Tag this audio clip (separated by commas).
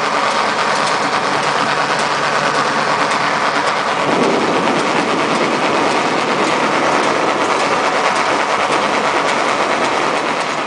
Vehicle, outside, rural or natural